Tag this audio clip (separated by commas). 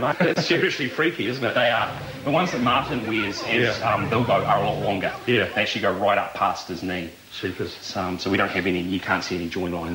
Speech